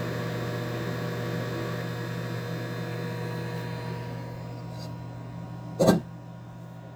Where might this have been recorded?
in a kitchen